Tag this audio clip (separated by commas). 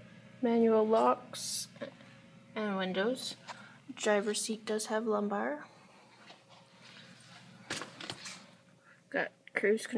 Speech